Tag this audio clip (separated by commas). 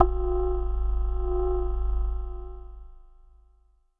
Keyboard (musical), Musical instrument, Music